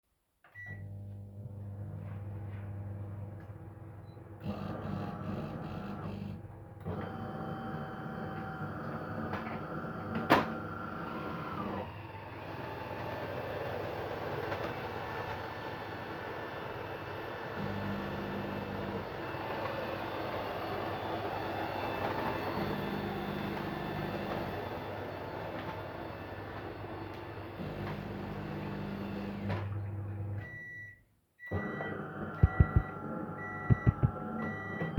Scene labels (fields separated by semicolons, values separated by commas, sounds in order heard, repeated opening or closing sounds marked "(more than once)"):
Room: kitchen; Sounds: microwave, coffee machine, vacuum cleaner